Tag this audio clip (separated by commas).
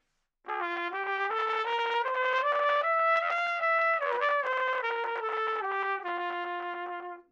Musical instrument, Music, Trumpet, Brass instrument